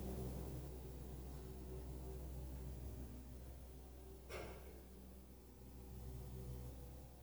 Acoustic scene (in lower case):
elevator